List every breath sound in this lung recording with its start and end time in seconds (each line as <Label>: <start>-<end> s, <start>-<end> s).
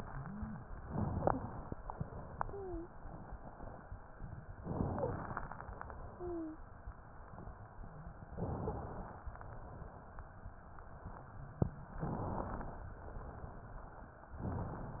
Inhalation: 0.80-1.76 s, 4.57-5.52 s, 8.35-9.31 s, 12.00-12.96 s
Exhalation: 1.77-3.91 s, 5.51-6.68 s, 9.31-10.53 s, 12.93-14.18 s
Wheeze: 2.51-2.92 s, 6.16-6.59 s
Stridor: 4.96-5.13 s
Crackles: 4.55-5.51 s